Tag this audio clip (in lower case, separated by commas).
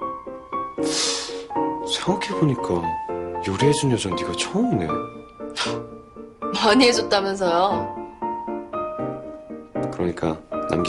music, speech